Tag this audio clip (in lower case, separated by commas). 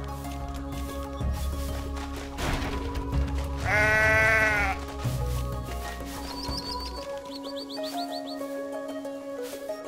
goat, music